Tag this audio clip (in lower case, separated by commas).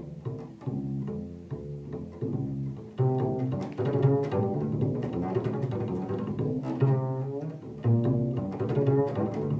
music, playing double bass, double bass